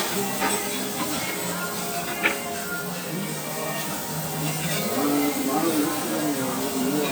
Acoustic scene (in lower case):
restaurant